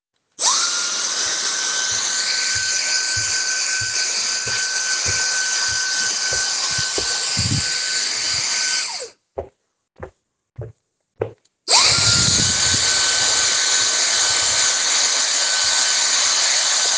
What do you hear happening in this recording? I moved through the room with the vacuum cleaner. I walked around while cleaning different parts of the floor.